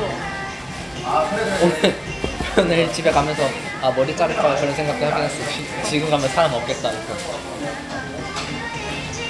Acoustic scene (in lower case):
restaurant